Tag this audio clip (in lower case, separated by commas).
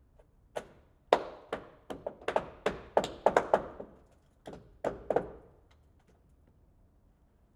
hammer, wood, tools